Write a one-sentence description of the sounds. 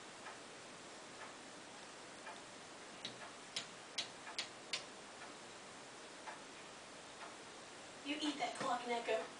A clock ticking then a female voice talks